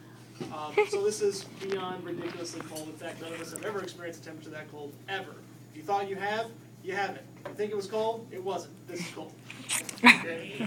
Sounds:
speech

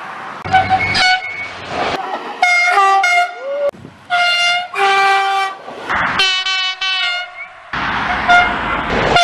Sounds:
train whistling

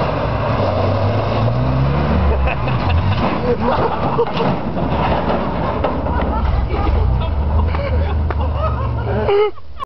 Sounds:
car, vehicle, air brake

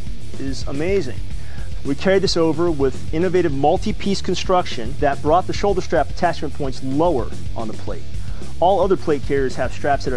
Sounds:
speech, music

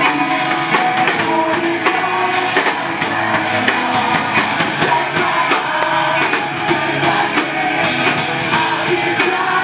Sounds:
music

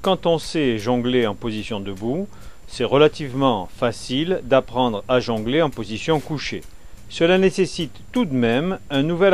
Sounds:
speech

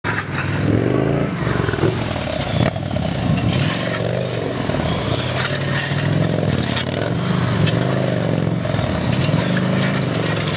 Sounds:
vehicle, motorcycle, outside, urban or man-made

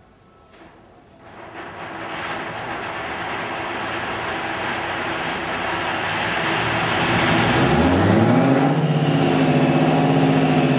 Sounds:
idling, vehicle, heavy engine (low frequency), engine

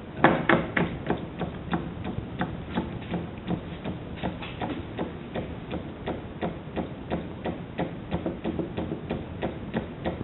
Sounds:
engine

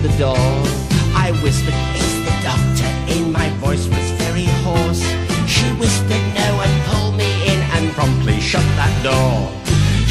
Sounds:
music

